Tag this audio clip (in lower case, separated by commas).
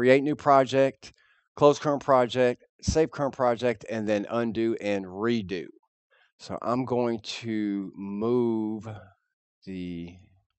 speech